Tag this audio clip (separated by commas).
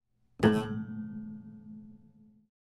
Piano, Musical instrument, Music, Keyboard (musical)